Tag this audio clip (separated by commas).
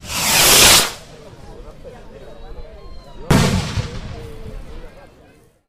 Fireworks, Explosion